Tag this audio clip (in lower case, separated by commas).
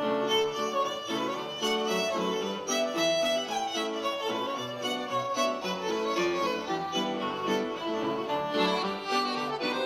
music, bowed string instrument